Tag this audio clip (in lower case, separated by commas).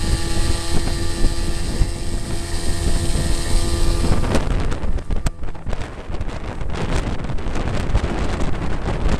water vehicle, wind, speedboat, wind noise (microphone)